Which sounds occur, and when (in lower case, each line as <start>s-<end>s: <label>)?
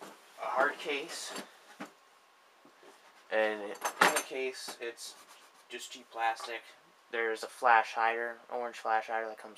0.0s-0.3s: generic impact sounds
0.0s-9.5s: mechanisms
0.3s-1.4s: man speaking
1.3s-1.4s: tick
1.6s-1.8s: generic impact sounds
2.6s-3.2s: generic impact sounds
3.3s-3.7s: man speaking
3.7s-4.3s: generic impact sounds
4.3s-5.1s: man speaking
5.0s-5.6s: generic impact sounds
5.7s-6.7s: man speaking
6.4s-6.4s: tick
7.0s-9.5s: man speaking
7.4s-7.4s: tick